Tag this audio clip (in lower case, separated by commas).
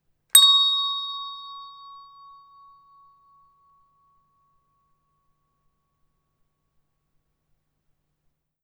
bell